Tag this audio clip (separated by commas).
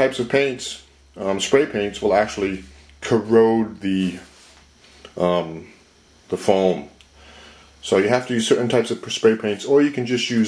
inside a small room, Speech